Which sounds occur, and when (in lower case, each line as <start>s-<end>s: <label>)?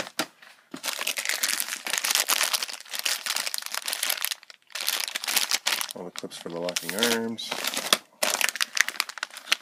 0.0s-0.2s: generic impact sounds
0.3s-0.6s: generic impact sounds
0.7s-1.7s: crinkling
1.8s-2.7s: crinkling
2.9s-4.5s: crinkling
4.7s-5.5s: crinkling
5.7s-6.0s: crinkling
5.9s-7.5s: male speech
6.1s-7.1s: crinkling
7.4s-8.0s: crinkling
8.2s-8.6s: crinkling
8.7s-9.3s: crinkling
9.5s-9.6s: crinkling